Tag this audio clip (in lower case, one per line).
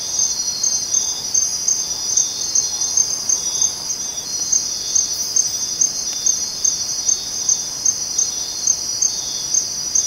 cricket
insect